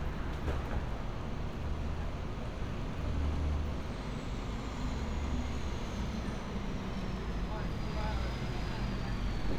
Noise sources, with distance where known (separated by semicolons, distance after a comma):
large-sounding engine, near